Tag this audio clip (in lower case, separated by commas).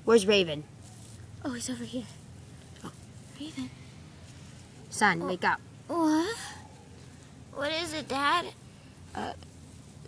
speech